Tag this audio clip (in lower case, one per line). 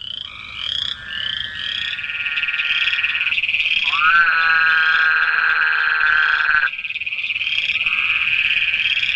croak
frog